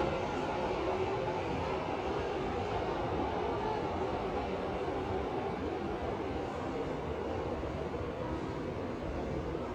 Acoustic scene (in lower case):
subway station